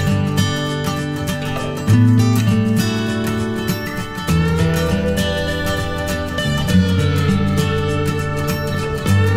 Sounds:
music

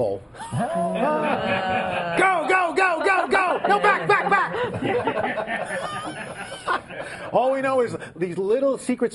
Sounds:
speech

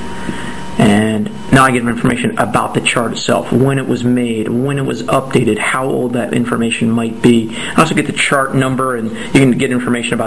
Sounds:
speech

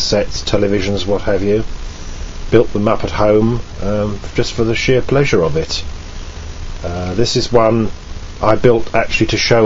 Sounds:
speech

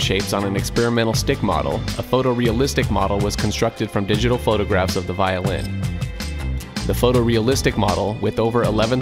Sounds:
music
musical instrument
speech
fiddle

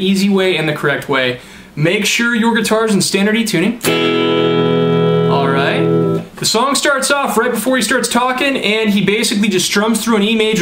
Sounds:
music
speech
guitar
plucked string instrument
musical instrument

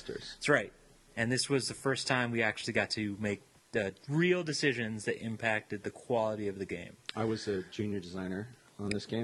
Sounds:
speech

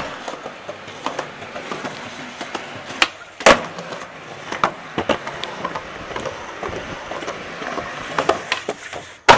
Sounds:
bang

